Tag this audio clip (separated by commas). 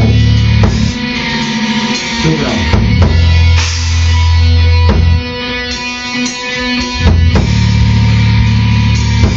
inside a small room, Music